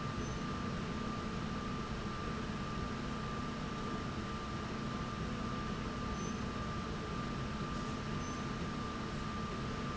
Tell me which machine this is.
slide rail